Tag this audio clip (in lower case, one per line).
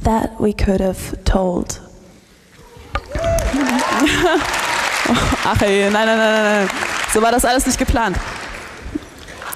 speech